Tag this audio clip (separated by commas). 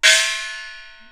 Musical instrument, Percussion, Music, Gong